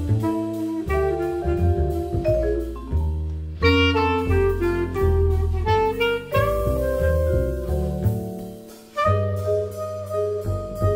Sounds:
playing saxophone, Saxophone, Music

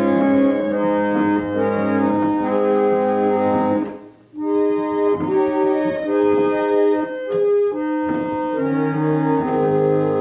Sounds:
Organ, Hammond organ

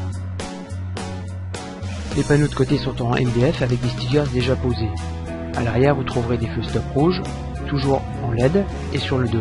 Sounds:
Music, Speech

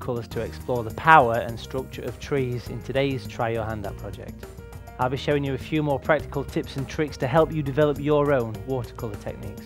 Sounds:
Speech, Music

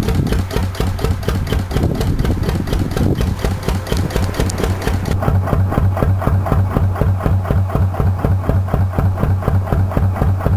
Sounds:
Engine

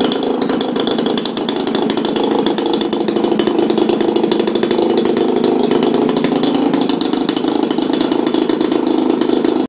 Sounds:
Medium engine (mid frequency), Vehicle

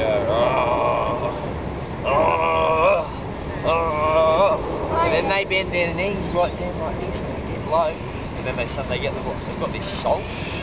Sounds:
Speech

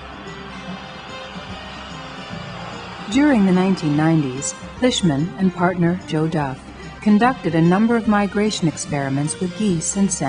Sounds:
Speech, Music

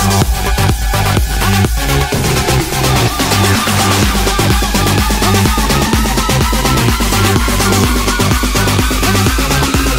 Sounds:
Electronic dance music, Music

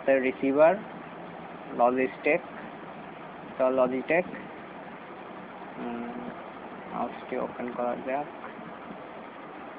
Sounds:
Speech

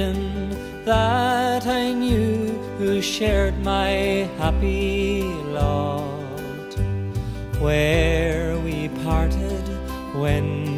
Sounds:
Music, Male singing

